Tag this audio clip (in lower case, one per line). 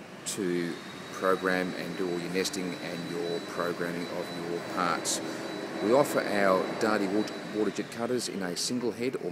speech